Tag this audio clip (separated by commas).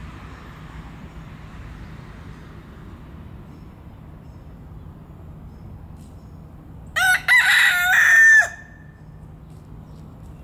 chicken crowing